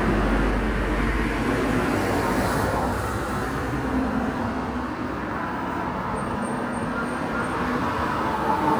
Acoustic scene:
residential area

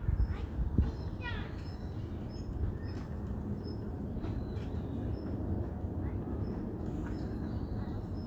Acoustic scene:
residential area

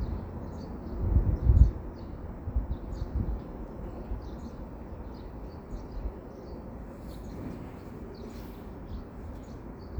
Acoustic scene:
residential area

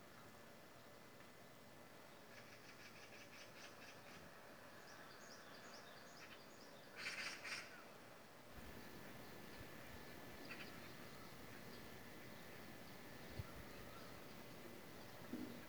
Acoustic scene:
park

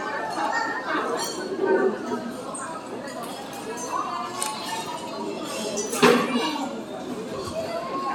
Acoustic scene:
restaurant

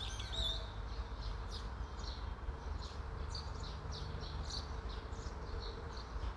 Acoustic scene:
park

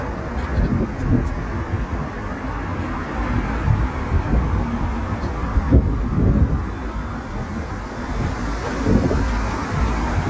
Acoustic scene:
street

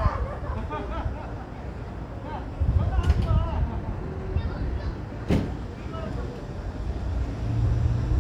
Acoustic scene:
residential area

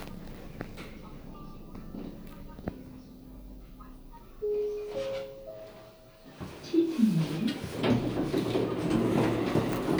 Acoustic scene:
elevator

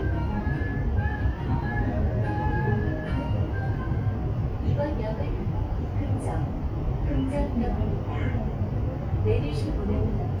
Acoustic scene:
subway train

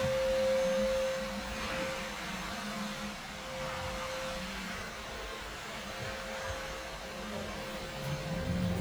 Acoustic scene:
elevator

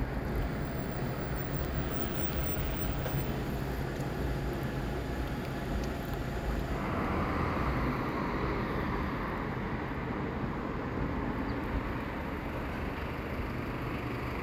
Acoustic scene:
street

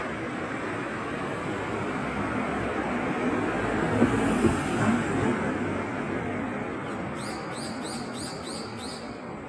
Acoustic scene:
street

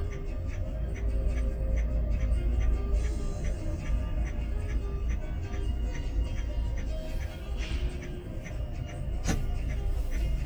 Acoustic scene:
car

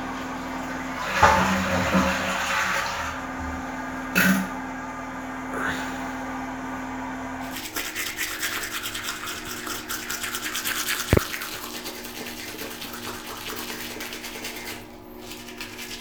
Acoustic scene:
restroom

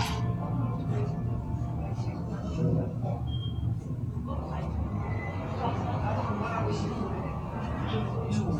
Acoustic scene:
cafe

